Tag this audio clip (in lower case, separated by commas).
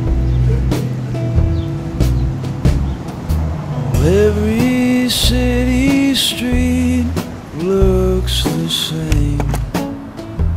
music